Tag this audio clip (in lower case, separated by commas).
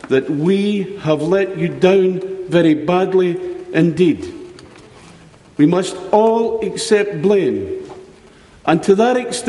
man speaking, speech, speech synthesizer